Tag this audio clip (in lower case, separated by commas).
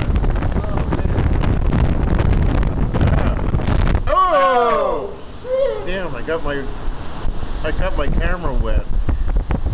speech, ocean, waves